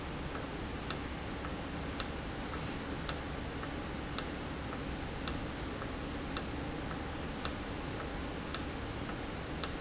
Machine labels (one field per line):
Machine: valve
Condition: normal